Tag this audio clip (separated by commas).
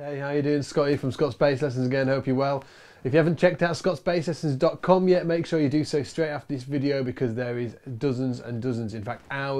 Speech